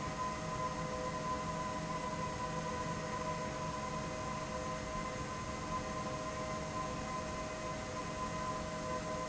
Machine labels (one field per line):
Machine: fan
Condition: abnormal